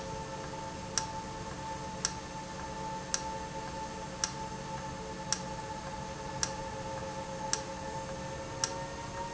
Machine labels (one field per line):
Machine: valve